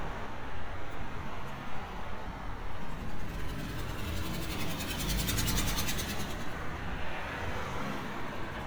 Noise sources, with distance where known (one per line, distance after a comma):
medium-sounding engine